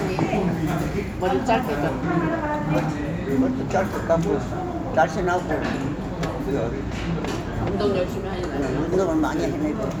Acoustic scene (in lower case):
restaurant